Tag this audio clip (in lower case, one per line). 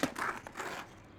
vehicle
skateboard